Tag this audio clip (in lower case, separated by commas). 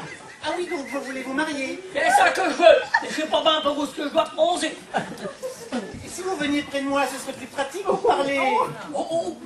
speech, chuckle